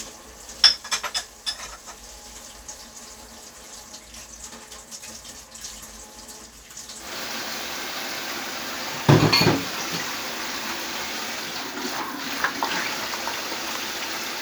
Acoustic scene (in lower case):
kitchen